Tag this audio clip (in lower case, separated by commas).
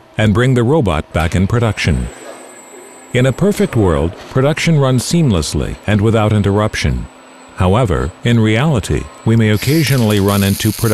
arc welding